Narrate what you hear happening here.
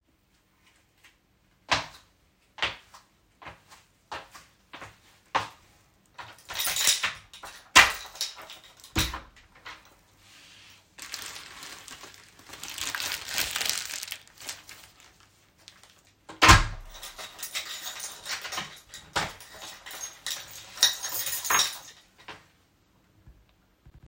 I walked toward the door. I unlocked the door with the key and opened it. Then I picked up a bag, closed the door, and locked it again with the key.